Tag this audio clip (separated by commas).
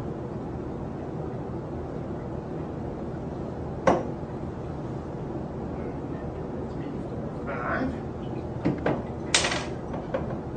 Speech